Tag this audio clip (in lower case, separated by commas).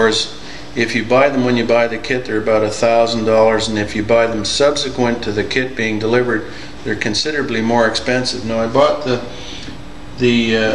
speech